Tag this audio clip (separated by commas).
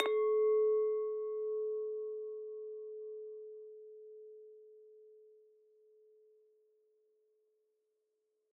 Glass, clink